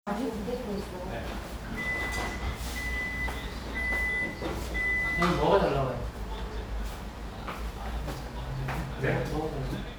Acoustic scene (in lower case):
restaurant